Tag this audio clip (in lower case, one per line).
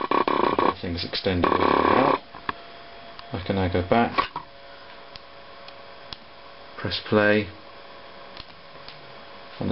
speech